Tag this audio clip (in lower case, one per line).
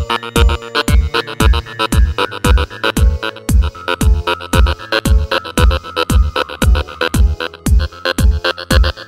music
techno
electronic music